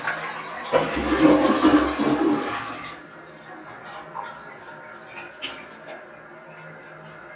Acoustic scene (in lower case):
restroom